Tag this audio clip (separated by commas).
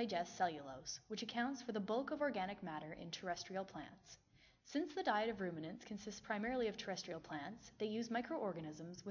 Speech